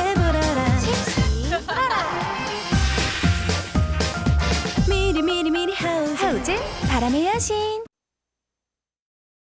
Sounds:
speech
music

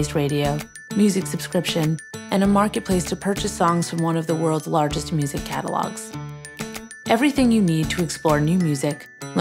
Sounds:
music
speech

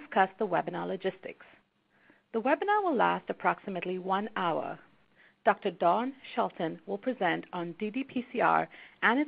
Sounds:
speech

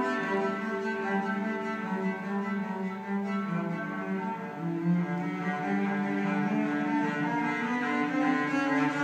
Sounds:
playing cello

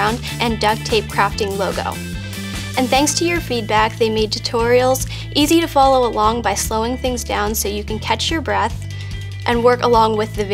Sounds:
speech
music

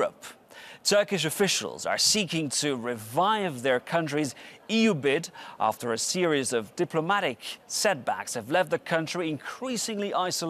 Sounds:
speech

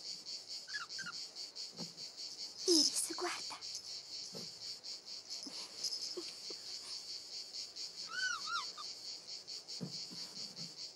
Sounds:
speech

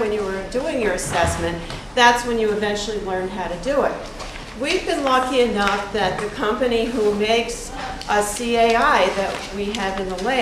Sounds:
speech

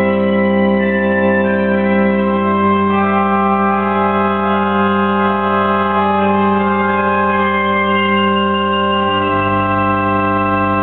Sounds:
keyboard (musical)
musical instrument
inside a large room or hall
music

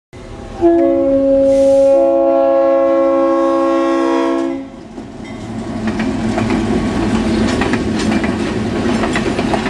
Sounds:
train
rail transport
vehicle
railroad car

